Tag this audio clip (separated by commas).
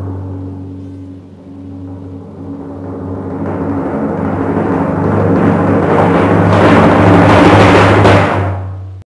Music